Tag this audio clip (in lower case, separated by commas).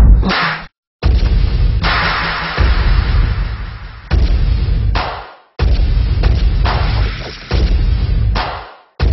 dubstep, music